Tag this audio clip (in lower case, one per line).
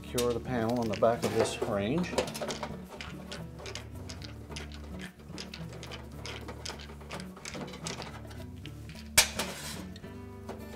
inside a large room or hall
music
speech